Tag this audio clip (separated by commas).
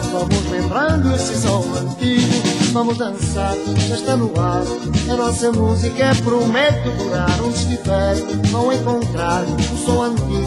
Music